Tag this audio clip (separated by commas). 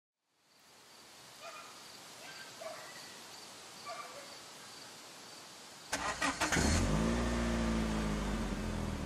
outside, rural or natural